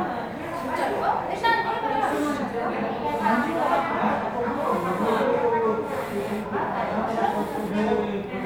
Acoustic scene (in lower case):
restaurant